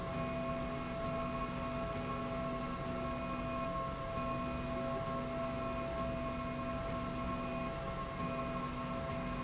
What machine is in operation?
slide rail